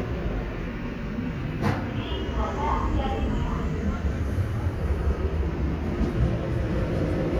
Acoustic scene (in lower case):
subway station